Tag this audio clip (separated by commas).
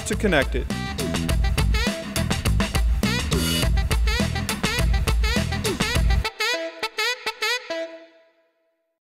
Music, Speech